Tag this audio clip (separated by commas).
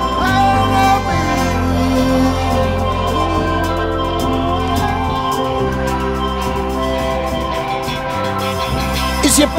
Music, Singing